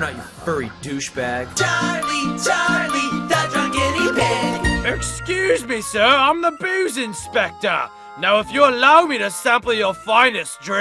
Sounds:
Speech, Music

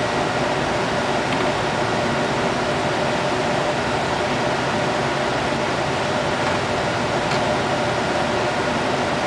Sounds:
inside a small room, Speech

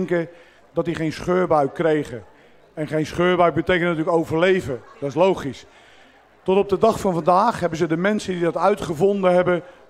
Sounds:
Speech

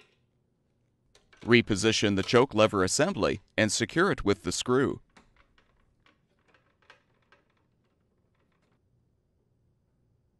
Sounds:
Speech

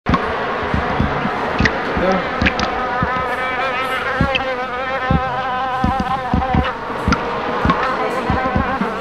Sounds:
Speech, inside a small room

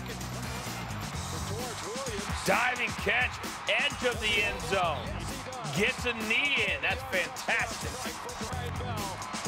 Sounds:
Speech, Music

